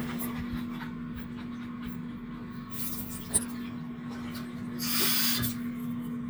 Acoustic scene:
restroom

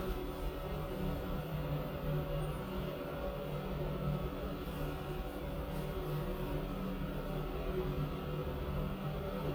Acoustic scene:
elevator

